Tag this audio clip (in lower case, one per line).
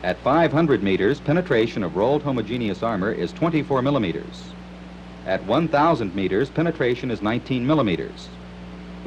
speech